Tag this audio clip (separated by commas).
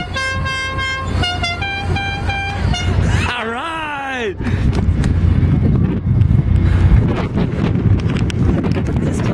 Water vehicle, Speech, speedboat, Music, Vehicle